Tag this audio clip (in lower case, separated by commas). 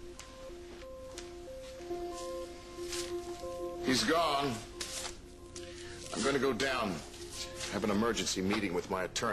speech